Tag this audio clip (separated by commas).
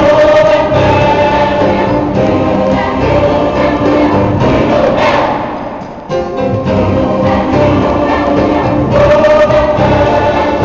Gospel music, Choir, Music, Singing, Piano